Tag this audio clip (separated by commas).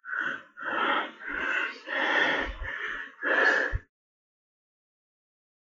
Respiratory sounds, Breathing